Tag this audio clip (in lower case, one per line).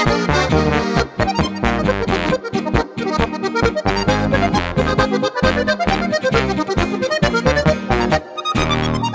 bowed string instrument
music
guitar
plucked string instrument
brass instrument
accordion
musical instrument